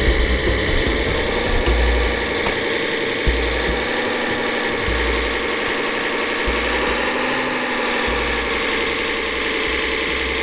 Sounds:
truck, vehicle, music

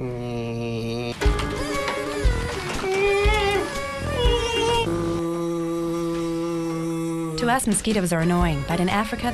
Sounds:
speech, music

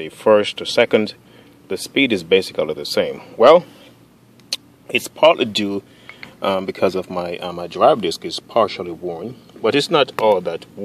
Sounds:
speech

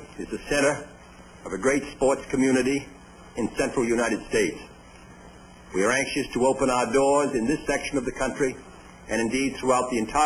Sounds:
speech, monologue, speech synthesizer, man speaking

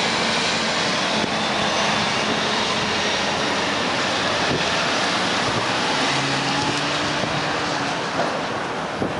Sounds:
bus, vehicle

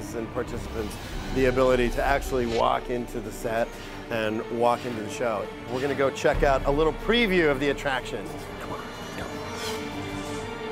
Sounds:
music, speech

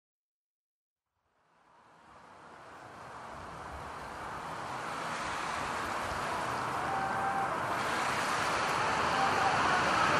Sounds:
silence

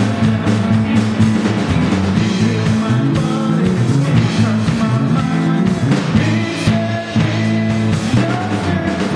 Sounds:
music

